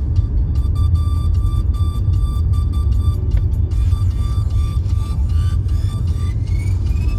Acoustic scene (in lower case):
car